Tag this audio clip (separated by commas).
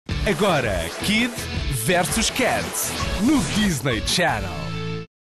Speech, Music